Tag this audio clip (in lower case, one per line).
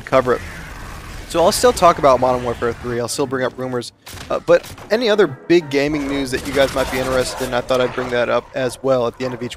speech